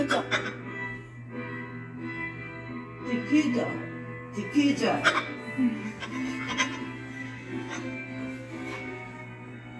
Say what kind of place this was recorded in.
cafe